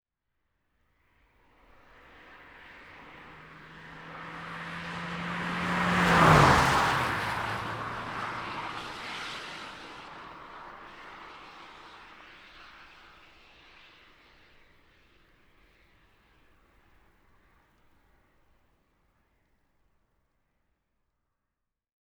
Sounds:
Motor vehicle (road), Car, Vehicle, Car passing by

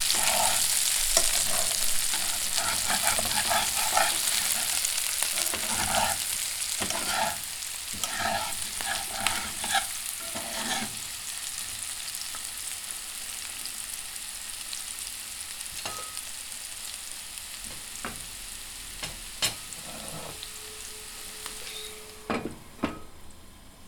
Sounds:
Frying (food), Domestic sounds

